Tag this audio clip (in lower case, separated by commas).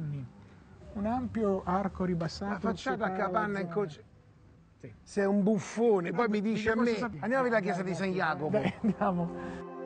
music, speech